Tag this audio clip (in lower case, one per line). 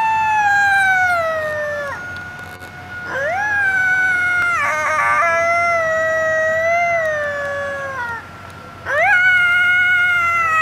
coyote howling